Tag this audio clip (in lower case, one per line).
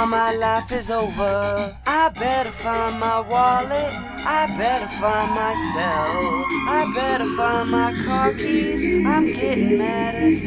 music